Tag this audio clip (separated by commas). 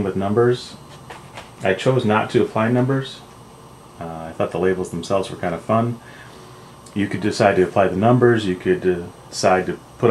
Speech